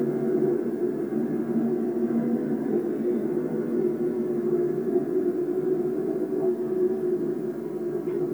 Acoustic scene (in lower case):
subway train